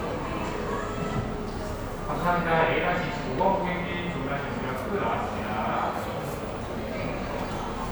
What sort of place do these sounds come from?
cafe